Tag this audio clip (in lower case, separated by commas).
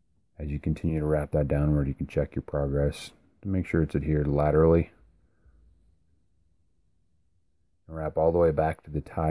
speech